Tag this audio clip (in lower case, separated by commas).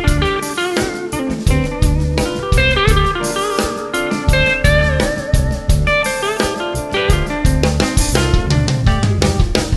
musical instrument, plucked string instrument, guitar, music, electric guitar